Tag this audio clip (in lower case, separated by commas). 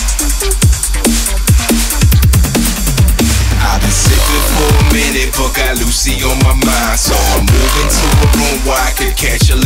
electronic music, music, dubstep